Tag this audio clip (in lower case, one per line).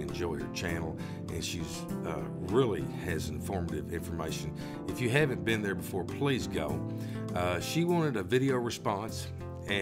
speech
music